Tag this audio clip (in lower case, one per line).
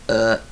burping